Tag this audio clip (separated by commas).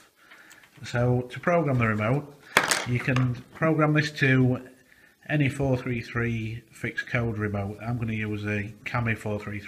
Speech